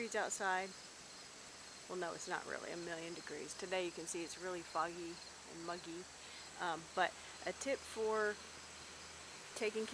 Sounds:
Speech

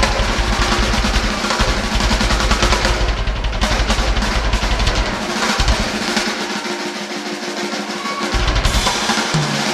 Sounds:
Drum kit, Musical instrument, Drum, Bass drum, Music

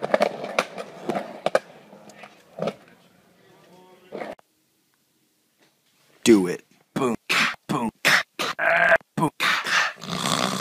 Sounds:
inside a small room, inside a large room or hall, Speech

